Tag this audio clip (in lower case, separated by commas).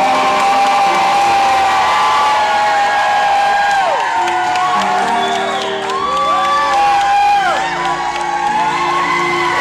music